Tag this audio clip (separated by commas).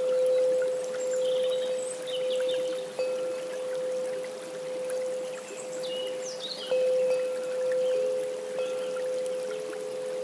Music